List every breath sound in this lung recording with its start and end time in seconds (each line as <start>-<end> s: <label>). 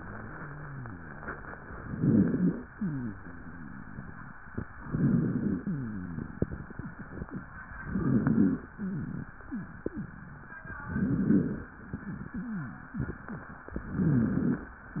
1.76-2.60 s: rhonchi
1.76-2.60 s: inhalation
2.75-4.31 s: wheeze
4.80-5.64 s: inhalation
4.80-5.64 s: rhonchi
5.66-7.21 s: wheeze
7.85-8.69 s: inhalation
7.85-8.69 s: rhonchi
8.79-10.47 s: wheeze
10.87-11.71 s: inhalation
10.87-11.71 s: rhonchi
11.84-13.53 s: wheeze
13.76-14.70 s: inhalation
13.76-14.70 s: rhonchi